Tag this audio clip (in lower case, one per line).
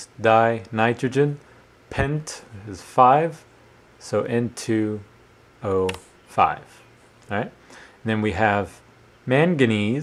speech